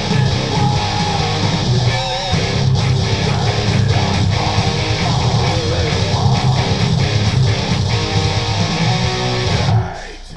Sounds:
Strum, Music, Musical instrument, Guitar

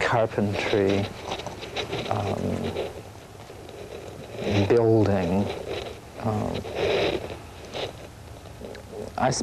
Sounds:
Speech

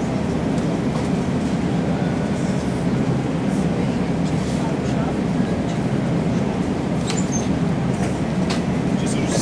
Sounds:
Speech

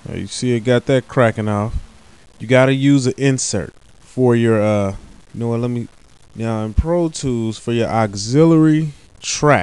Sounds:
Speech

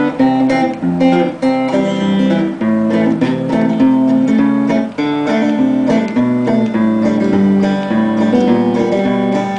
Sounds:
Plucked string instrument, Music, Guitar, Musical instrument

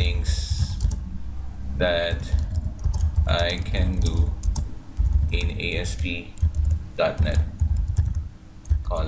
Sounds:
Speech, Typing

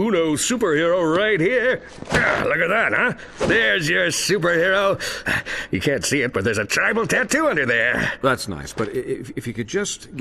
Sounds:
Speech

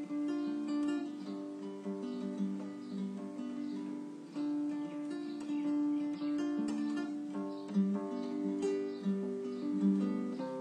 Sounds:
Acoustic guitar, Music, Guitar, Musical instrument, Strum, Plucked string instrument

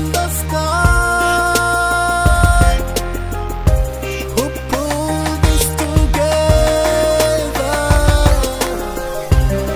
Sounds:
Music of Africa, Rhythm and blues, Hip hop music, Singing, Gospel music, Song, Afrobeat, Music

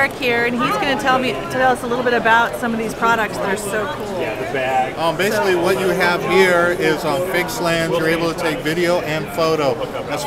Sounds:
Speech

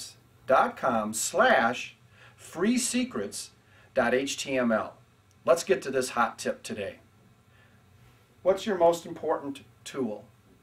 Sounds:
Speech

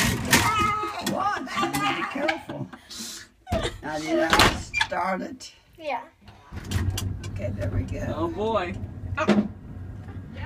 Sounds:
inside a small room, Speech

